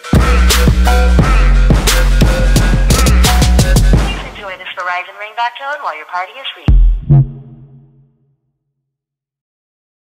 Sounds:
speech, music

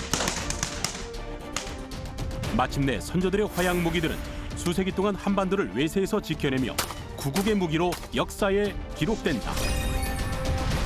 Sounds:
firing muskets

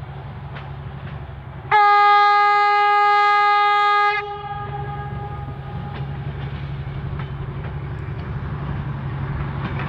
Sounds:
rail transport, train, railroad car, train horn

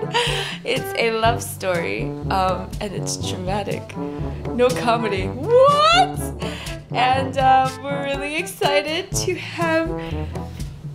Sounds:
music, speech

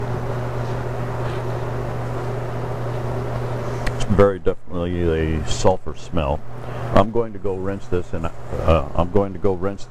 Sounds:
inside a small room, speech

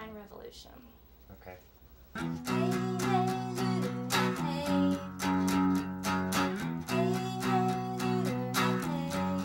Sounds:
speech, music

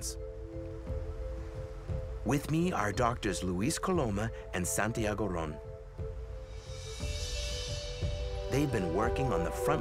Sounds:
speech, music

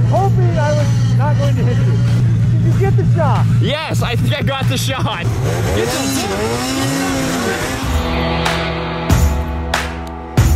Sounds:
driving snowmobile

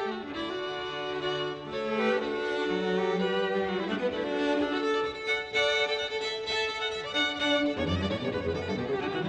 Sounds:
cello, musical instrument, music, playing cello, fiddle

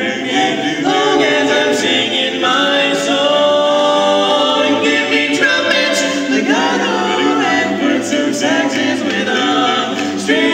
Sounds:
male singing, music, choir

